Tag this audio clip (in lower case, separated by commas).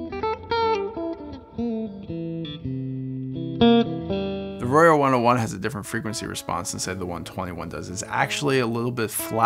speech, music